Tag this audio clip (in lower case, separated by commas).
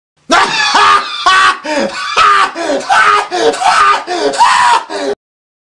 snicker